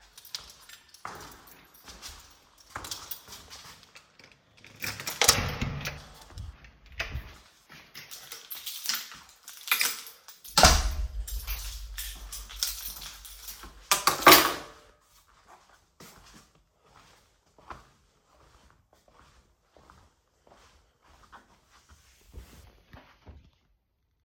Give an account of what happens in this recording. I went to the door of my flat, unlocked the door, opened the door, went in and closed the door. I went to a table, dropped the key. I went to my couch and sat down